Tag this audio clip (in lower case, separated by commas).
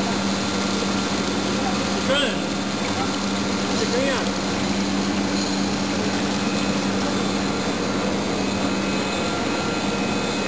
speech